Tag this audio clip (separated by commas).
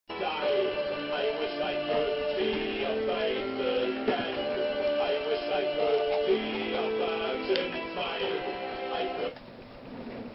Music, Television